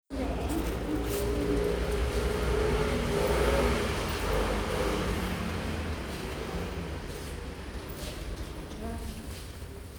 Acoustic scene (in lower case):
elevator